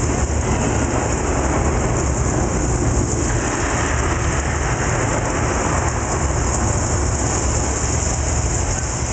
Thunderstorm with heavy rains